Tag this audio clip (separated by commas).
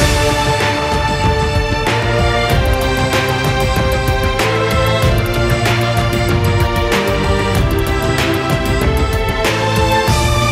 Music